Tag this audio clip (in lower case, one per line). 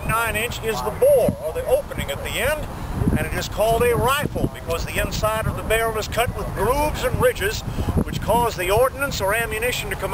speech